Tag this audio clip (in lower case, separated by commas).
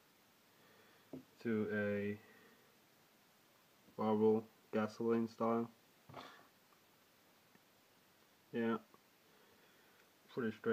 speech